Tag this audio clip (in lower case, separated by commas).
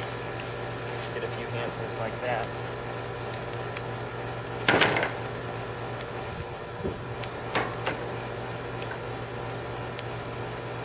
fire